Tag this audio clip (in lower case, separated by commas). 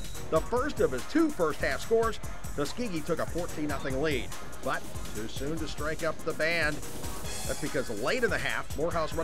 music, speech